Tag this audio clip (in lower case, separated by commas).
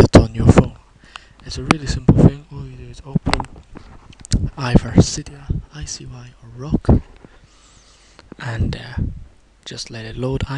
speech